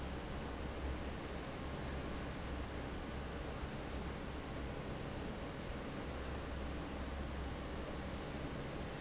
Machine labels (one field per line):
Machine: fan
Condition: normal